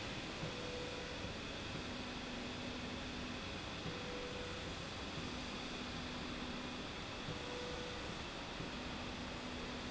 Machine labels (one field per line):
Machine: slide rail